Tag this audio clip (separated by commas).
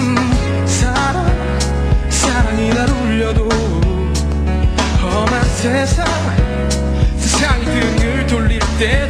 Music